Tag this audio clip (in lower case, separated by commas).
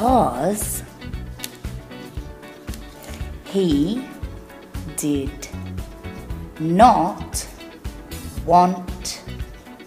music, speech